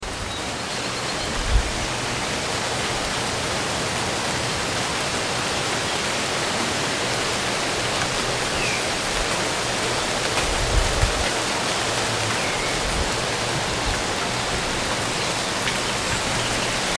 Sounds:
water
rain

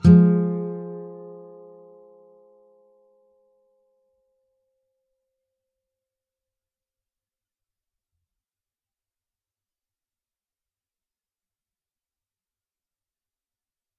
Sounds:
guitar
plucked string instrument
music
musical instrument

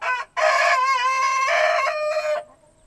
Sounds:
animal
livestock
chicken
fowl

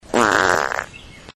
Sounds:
fart

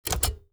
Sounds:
typewriter
typing
home sounds

